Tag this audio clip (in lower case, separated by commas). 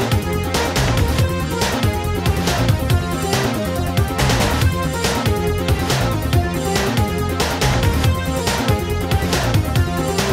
music, pop music